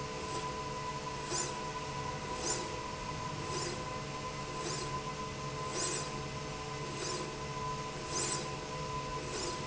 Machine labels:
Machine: slide rail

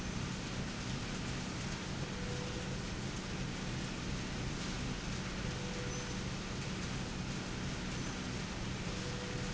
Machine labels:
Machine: slide rail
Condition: normal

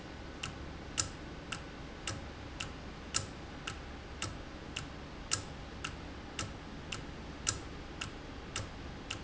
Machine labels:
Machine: valve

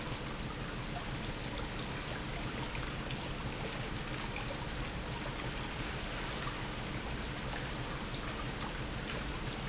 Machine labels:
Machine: pump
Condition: normal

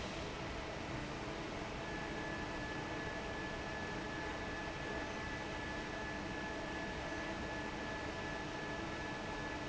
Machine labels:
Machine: fan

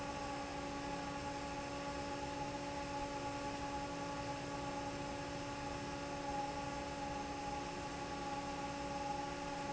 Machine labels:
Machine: fan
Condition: normal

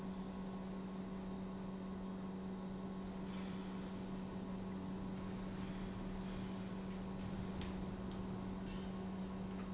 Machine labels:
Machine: pump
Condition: normal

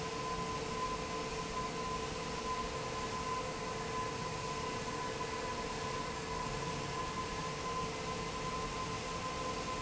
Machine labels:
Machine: fan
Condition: normal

